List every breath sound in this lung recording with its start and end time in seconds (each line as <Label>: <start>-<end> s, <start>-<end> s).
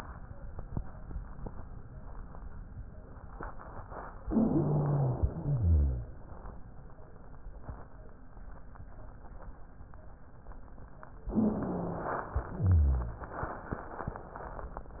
Inhalation: 4.22-5.38 s, 11.28-12.31 s
Exhalation: 5.42-6.11 s, 12.31-13.33 s
Wheeze: 4.22-5.38 s, 5.42-6.11 s, 11.24-12.17 s, 12.31-13.33 s